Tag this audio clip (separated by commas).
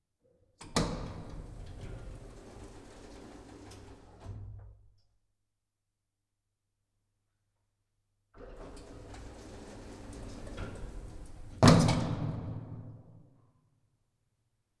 Domestic sounds, Sliding door, Door